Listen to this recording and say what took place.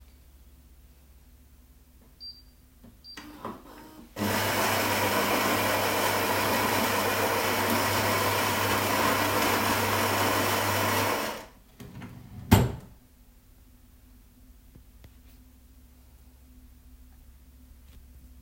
I make coffee and open a drawer and close it again